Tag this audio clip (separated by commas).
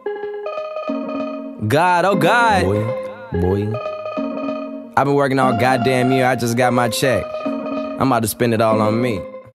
Speech, Music